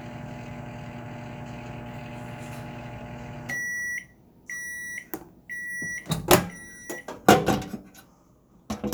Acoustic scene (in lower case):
kitchen